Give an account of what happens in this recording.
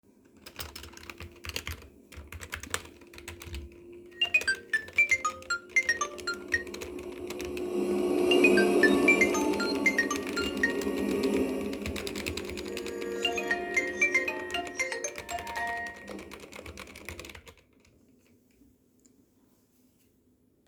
I was playing a game with headphones on. Someone was calling me and then my roomate passed vaccuming.